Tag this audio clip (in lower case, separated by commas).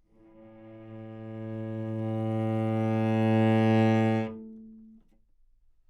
music, bowed string instrument, musical instrument